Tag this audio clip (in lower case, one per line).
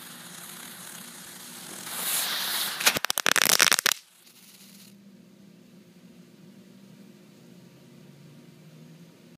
fireworks